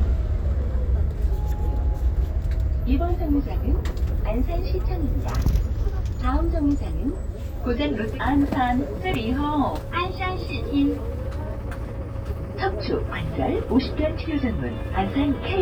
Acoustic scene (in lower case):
bus